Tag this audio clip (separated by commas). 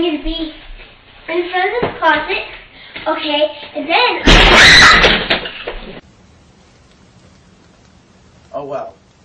Speech